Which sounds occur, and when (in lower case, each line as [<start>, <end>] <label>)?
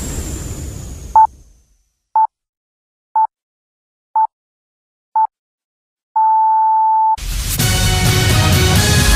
[0.00, 2.10] sound effect
[1.15, 1.26] bleep
[2.17, 2.29] bleep
[3.16, 3.28] bleep
[4.17, 4.27] bleep
[5.16, 5.29] bleep
[6.17, 7.17] bleep
[7.17, 7.61] sound effect
[7.60, 9.15] music